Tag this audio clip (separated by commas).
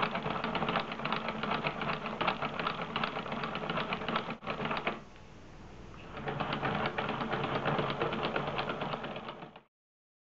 inside a small room